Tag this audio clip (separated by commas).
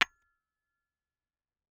Hammer, Tools, Tap